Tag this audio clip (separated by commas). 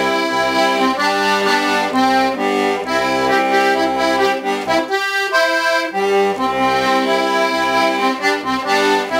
Music, Accordion